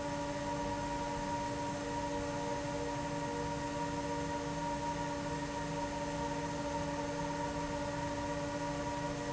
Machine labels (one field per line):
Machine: fan